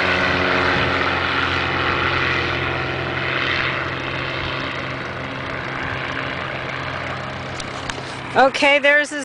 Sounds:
speech

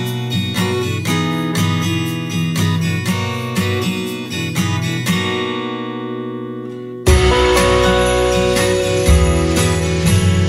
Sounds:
music

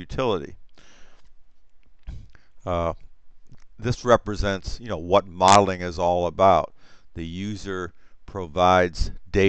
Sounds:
speech

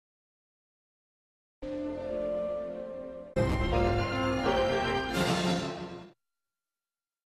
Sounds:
television
music

